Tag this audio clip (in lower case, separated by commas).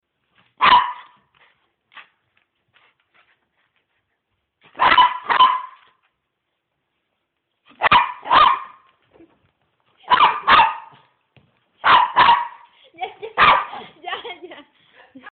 animal, pets, dog